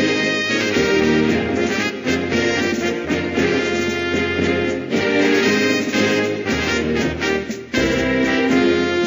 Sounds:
Music

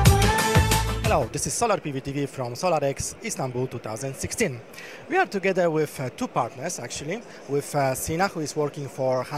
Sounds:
Speech, Music

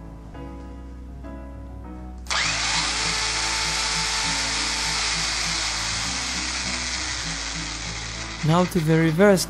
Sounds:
Music, Speech

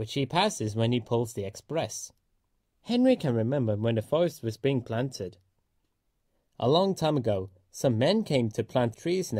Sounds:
Speech

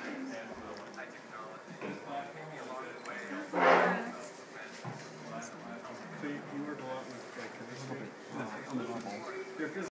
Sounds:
Speech

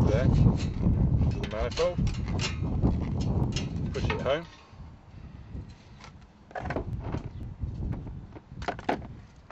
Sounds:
Speech, outside, rural or natural

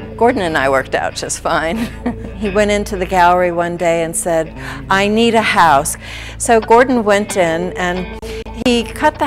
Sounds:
Music, Speech

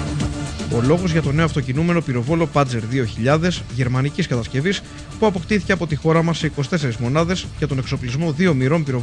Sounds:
Music, Speech

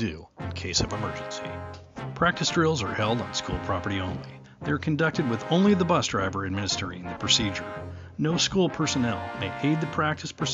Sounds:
Music, Speech

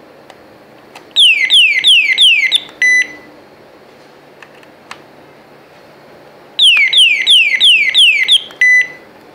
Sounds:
Alarm, inside a small room

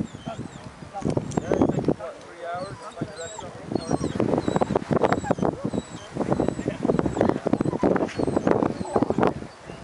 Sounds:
Speech

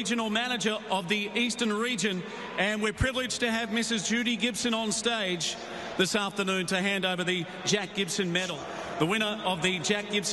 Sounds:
monologue, Speech, Male speech

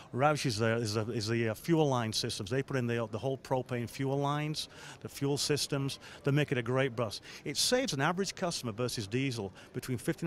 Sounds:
Speech

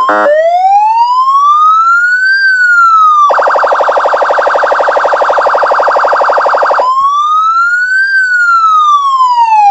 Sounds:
Emergency vehicle, Police car (siren), Siren

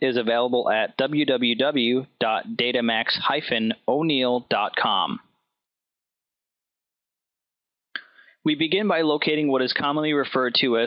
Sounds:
Speech

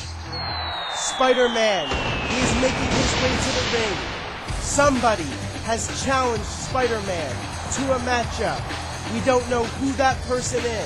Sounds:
Music, Speech

